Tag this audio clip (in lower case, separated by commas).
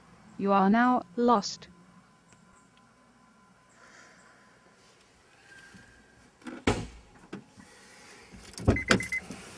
keys jangling